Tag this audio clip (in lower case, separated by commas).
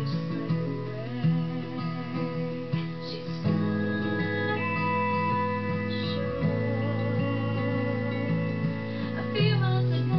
music